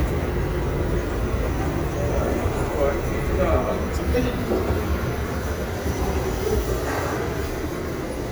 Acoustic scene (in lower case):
crowded indoor space